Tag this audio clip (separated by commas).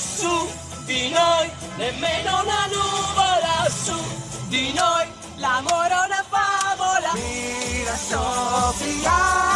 Music, Male singing, Female singing